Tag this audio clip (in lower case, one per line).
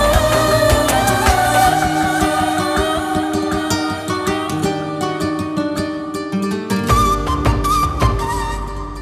music